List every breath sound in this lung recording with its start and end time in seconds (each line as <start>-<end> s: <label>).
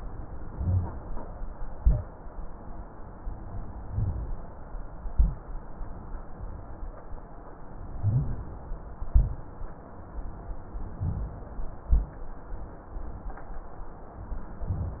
0.46-0.99 s: inhalation
0.46-0.99 s: rhonchi
1.73-2.15 s: exhalation
1.73-2.15 s: rhonchi
3.89-4.42 s: inhalation
3.89-4.42 s: rhonchi
5.12-5.54 s: exhalation
5.12-5.54 s: rhonchi
7.95-8.54 s: inhalation
7.95-8.54 s: rhonchi
9.01-9.43 s: exhalation
9.01-9.43 s: rhonchi
10.97-11.56 s: inhalation
10.97-11.56 s: rhonchi
11.88-12.30 s: exhalation
11.88-12.30 s: rhonchi